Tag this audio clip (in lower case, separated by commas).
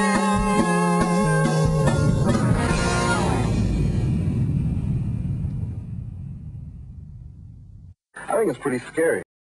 music, speech